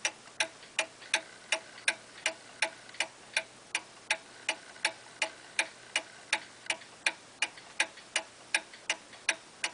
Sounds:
tick-tock, tick

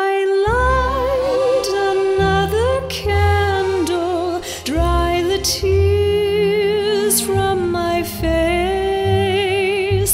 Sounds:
music

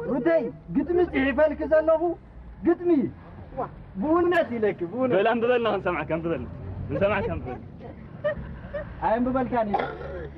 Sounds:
speech

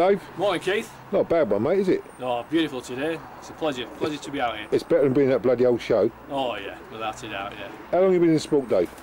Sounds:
bird, speech, coo

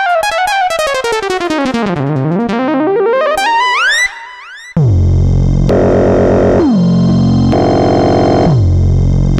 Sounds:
piano, electric piano, musical instrument, keyboard (musical), synthesizer, music

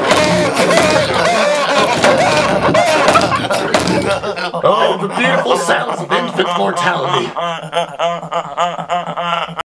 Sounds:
speech

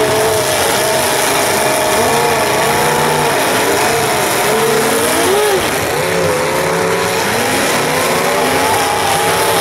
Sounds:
car, outside, urban or man-made, vehicle

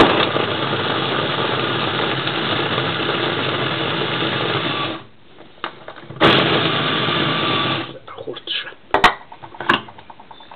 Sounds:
blender

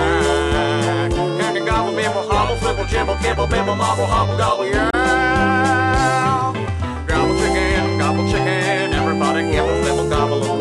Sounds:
music

